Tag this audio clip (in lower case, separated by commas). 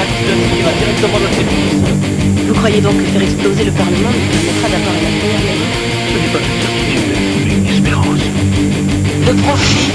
music, speech